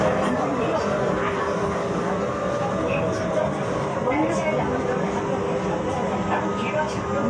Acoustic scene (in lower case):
subway train